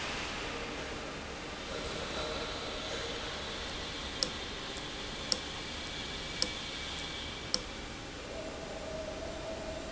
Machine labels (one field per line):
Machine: valve